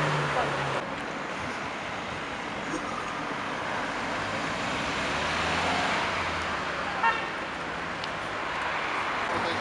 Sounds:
Speech

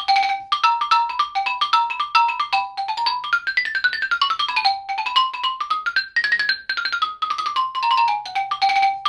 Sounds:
playing glockenspiel

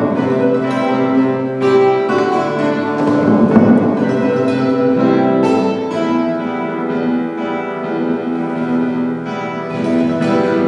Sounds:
Plucked string instrument, Strum, Music, Guitar, Musical instrument

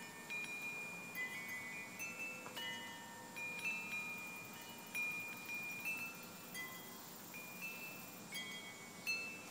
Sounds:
Wind chime, Chime

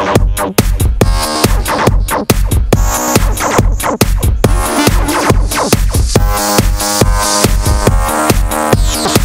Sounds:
Dubstep, Music

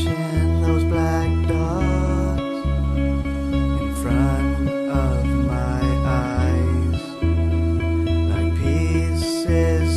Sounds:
Music

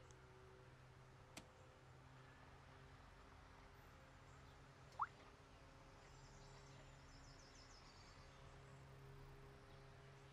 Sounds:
telephone bell ringing

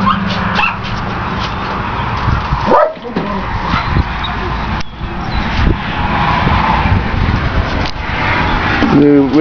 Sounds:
Speech

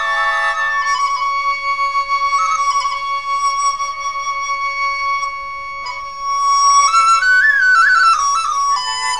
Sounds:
Flute, Music, Musical instrument, woodwind instrument, playing flute

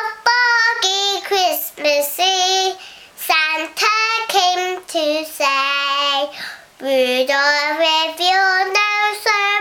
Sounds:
Child singing

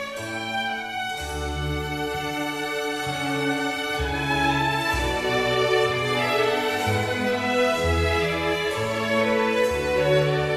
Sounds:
Music, Musical instrument, fiddle

